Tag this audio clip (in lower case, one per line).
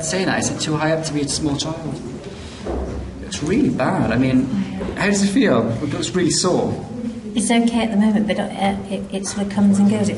man speaking